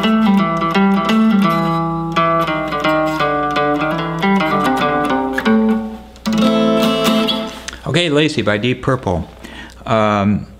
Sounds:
Electric guitar, Music, Musical instrument, Strum, Guitar, Speech, Plucked string instrument

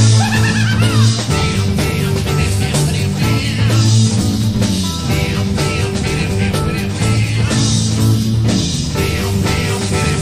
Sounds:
Music

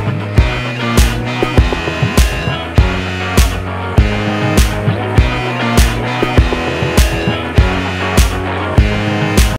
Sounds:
Music

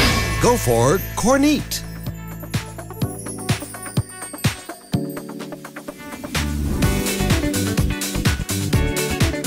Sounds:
Speech, Music

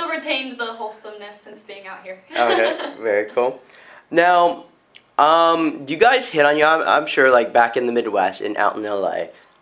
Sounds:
Speech

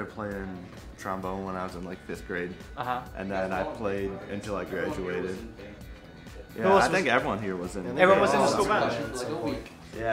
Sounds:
Music, Speech

